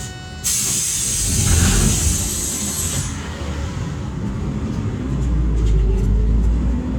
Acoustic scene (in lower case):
bus